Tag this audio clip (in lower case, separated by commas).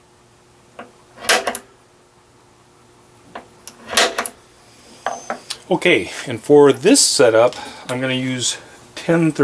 speech, tools